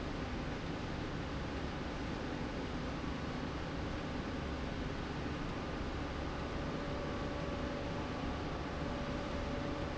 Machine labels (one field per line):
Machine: slide rail